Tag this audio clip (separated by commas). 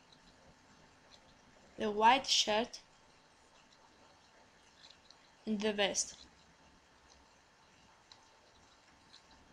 Speech